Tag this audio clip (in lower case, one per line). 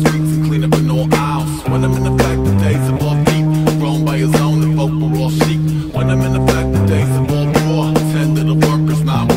music